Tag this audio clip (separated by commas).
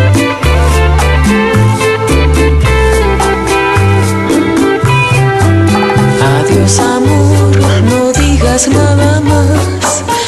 Music